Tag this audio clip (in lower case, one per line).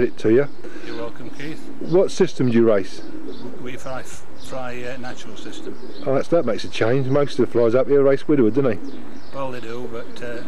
bird
coo
speech